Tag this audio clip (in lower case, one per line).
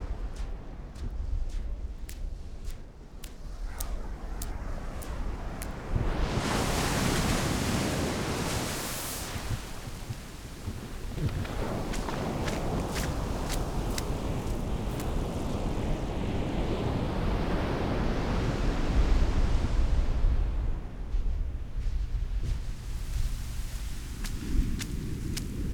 ocean
water
waves